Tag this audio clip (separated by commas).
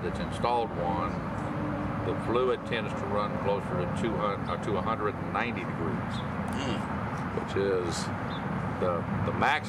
Speech